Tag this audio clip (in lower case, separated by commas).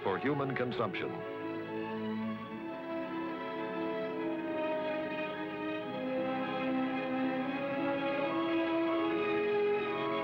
speech, music